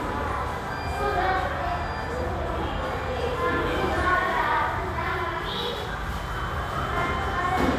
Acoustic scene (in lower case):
restaurant